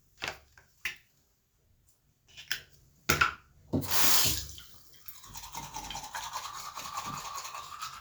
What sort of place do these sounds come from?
restroom